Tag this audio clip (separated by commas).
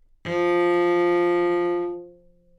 Bowed string instrument, Musical instrument, Music